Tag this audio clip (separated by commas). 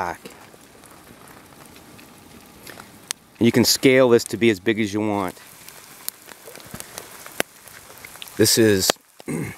Speech, Fire, outside, rural or natural